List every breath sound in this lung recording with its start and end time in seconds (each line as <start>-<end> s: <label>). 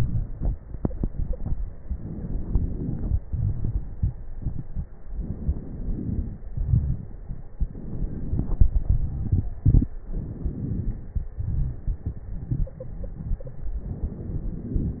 0.79-0.98 s: stridor
1.19-1.39 s: stridor
1.77-3.22 s: inhalation
1.77-3.22 s: crackles
3.24-5.01 s: exhalation
3.24-5.01 s: crackles
5.00-6.44 s: inhalation
5.02-6.44 s: crackles
6.46-7.55 s: exhalation
6.46-7.55 s: crackles
7.56-8.74 s: inhalation
7.56-8.74 s: crackles
8.76-10.04 s: exhalation
8.76-10.04 s: crackles
10.05-11.32 s: inhalation
10.05-11.32 s: crackles
11.35-13.78 s: exhalation
12.63-12.95 s: stridor
13.03-13.20 s: stridor
13.41-13.59 s: stridor
13.79-15.00 s: inhalation
13.79-15.00 s: crackles